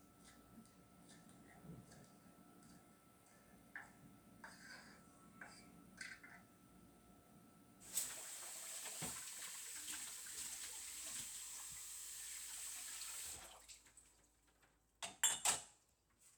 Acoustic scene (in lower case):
kitchen